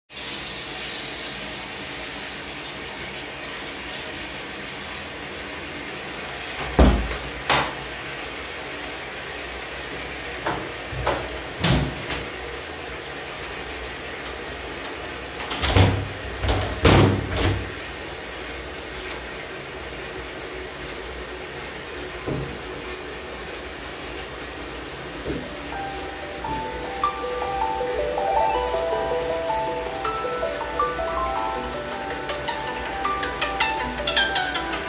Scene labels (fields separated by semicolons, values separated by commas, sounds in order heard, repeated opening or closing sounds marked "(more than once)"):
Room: bathroom; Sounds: running water, door, window (more than once), phone ringing